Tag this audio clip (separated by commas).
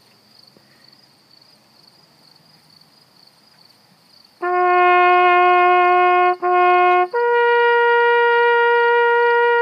playing bugle